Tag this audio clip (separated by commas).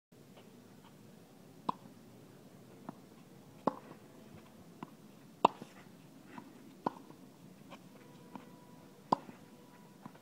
playing tennis